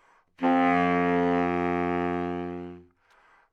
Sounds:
Wind instrument, Musical instrument, Music

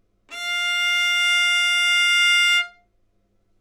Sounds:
Music, Bowed string instrument, Musical instrument

